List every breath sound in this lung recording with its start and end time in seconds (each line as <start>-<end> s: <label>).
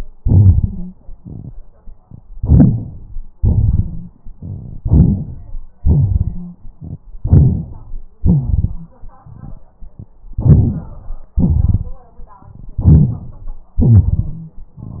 2.33-3.25 s: inhalation
3.38-4.29 s: exhalation
4.97-5.66 s: inhalation
5.83-6.79 s: exhalation
6.22-6.58 s: wheeze
7.23-8.04 s: inhalation
8.21-9.65 s: exhalation
10.38-11.36 s: inhalation
11.36-12.01 s: exhalation
12.82-13.79 s: inhalation
13.74-14.01 s: rhonchi
13.79-14.76 s: exhalation
14.16-14.53 s: wheeze